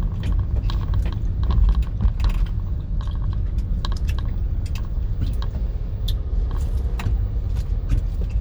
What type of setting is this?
car